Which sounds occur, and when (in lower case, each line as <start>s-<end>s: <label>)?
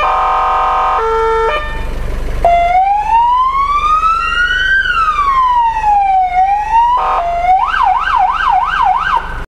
0.0s-1.0s: siren
0.0s-9.4s: medium engine (mid frequency)
0.9s-1.9s: vehicle horn
1.4s-1.6s: clicking
2.4s-6.9s: police car (siren)
7.0s-9.4s: ambulance (siren)